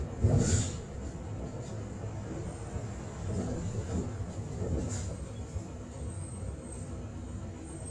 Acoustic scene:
bus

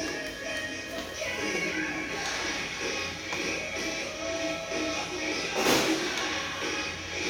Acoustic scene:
restaurant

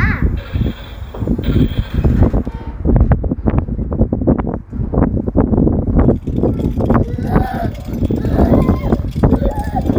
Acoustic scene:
residential area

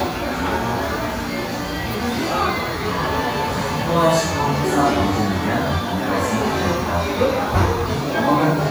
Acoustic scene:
crowded indoor space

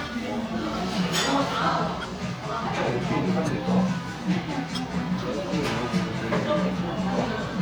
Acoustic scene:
cafe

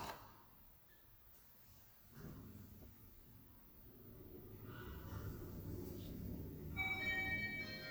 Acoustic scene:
elevator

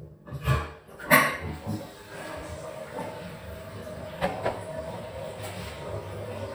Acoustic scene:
restroom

